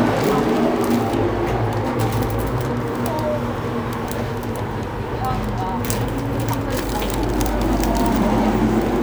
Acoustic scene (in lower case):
elevator